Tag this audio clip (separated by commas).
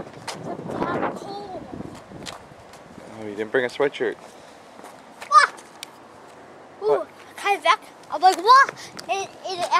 Wind noise (microphone), Wind